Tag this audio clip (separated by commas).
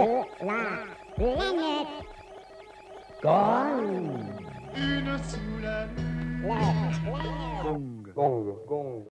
Radio, Music, Speech